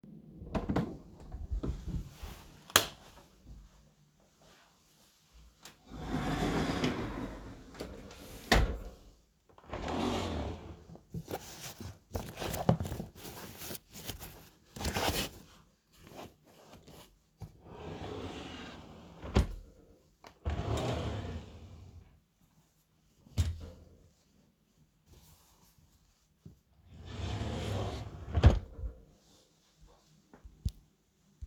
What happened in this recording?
I opend the Bedroom door, turned on the light and went to the closet. I opend the slidingdoor and the drawer then looked for some clothes. I closed the drawer opened another drawer, took the clothes and also closed this drawer